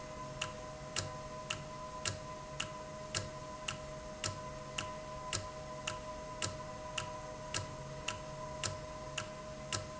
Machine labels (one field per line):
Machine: valve